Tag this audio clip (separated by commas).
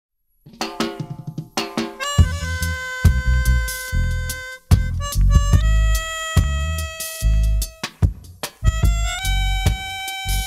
Music